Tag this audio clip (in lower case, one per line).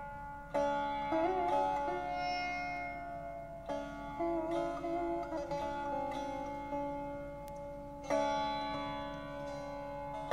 playing sitar